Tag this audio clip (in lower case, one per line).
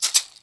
music
rattle (instrument)
musical instrument
percussion